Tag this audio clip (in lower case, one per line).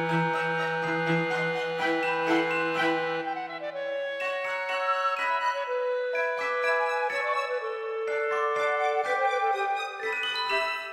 music